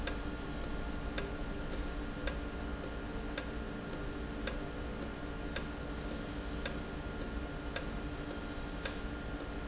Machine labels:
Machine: valve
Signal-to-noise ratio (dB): -6 dB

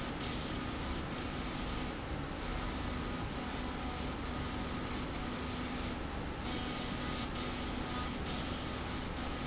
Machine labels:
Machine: slide rail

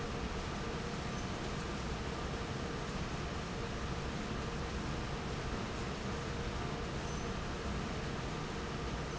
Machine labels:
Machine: fan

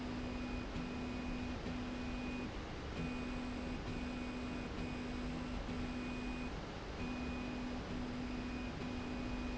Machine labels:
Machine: slide rail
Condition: normal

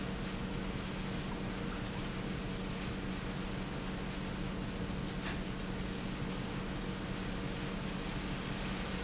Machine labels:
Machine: pump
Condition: normal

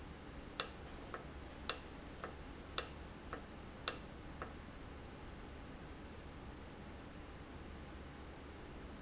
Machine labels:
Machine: valve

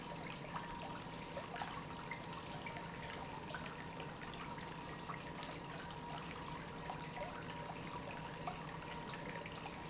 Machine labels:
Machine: pump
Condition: normal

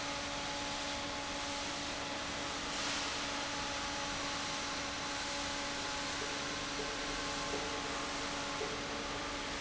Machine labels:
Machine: fan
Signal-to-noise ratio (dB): -6 dB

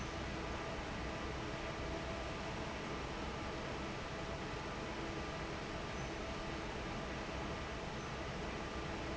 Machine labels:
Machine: fan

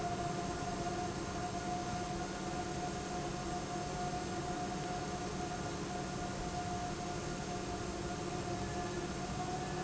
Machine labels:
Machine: pump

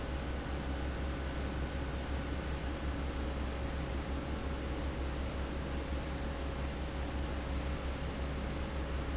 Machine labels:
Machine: fan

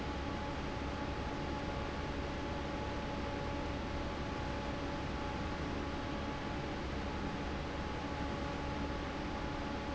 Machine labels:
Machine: fan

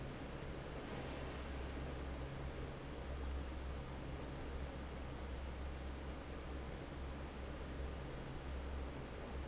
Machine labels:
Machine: fan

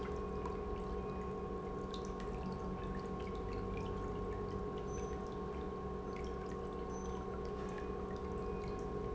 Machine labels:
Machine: pump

